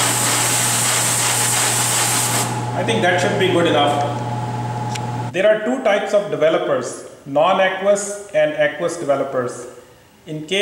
A hose spraying water, followed by a man talking